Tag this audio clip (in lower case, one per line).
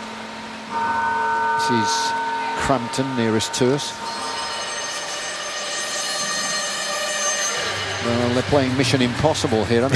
speech
male speech